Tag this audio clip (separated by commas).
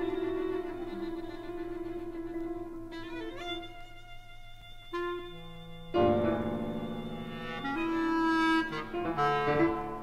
fiddle, Bowed string instrument